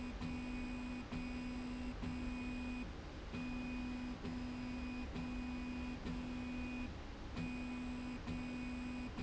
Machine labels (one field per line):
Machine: slide rail